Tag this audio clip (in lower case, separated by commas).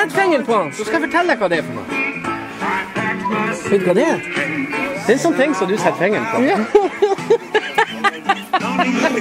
music, speech